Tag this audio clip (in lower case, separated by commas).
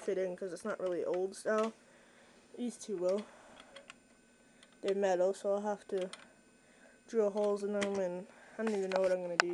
speech